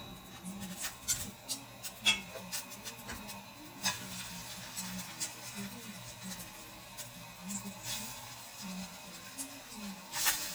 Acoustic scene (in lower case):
kitchen